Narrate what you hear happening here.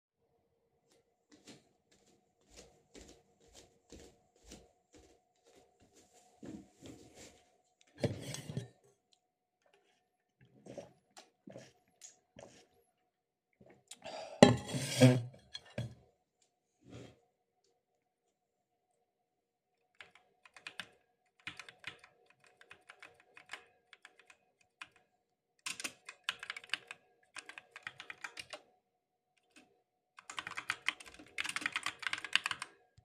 I walked to my desk, sat down on the chair, grabbed my metalic thermos sipped some water from it with a straw then started typing on the keyboard.